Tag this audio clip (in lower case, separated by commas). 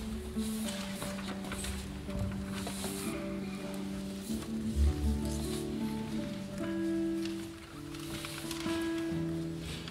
acoustic guitar, musical instrument, strum, plucked string instrument, guitar, music